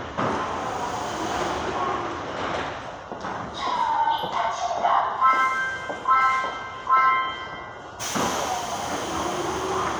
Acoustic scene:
subway station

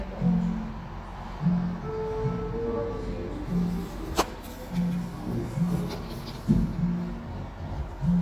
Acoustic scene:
cafe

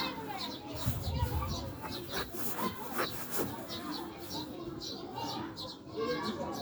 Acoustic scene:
residential area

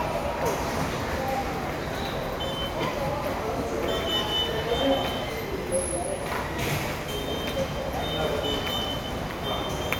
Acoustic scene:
subway station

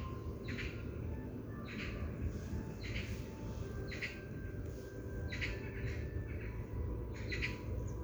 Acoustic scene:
park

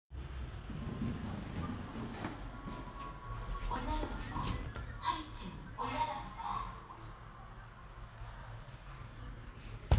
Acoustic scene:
elevator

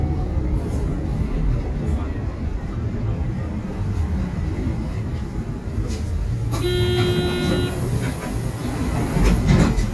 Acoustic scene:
bus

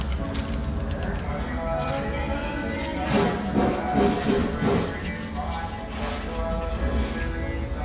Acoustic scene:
restaurant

